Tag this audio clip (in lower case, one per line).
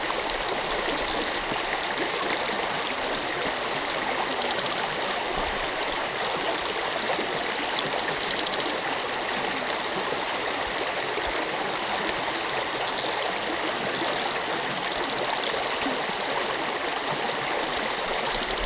animal
wild animals
frog
stream
water